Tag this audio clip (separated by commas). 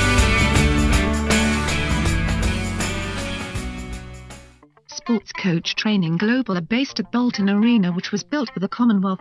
Music, Speech synthesizer, Speech